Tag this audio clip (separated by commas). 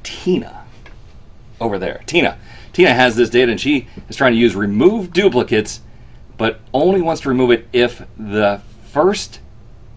inside a small room, Speech